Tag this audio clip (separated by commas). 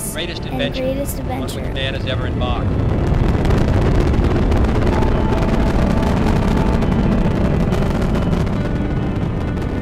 Music, Speech